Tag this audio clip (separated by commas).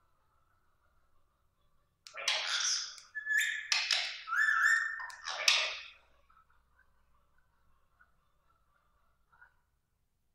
parrot talking